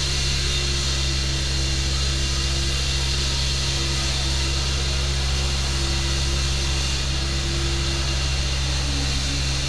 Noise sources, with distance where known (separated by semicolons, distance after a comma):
unidentified powered saw, near